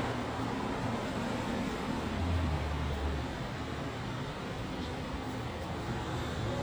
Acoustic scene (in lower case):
street